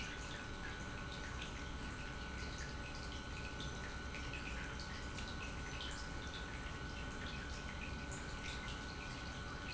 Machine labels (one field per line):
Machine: pump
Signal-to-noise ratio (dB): 6 dB